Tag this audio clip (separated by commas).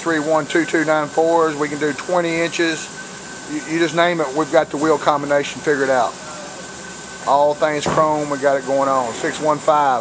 Speech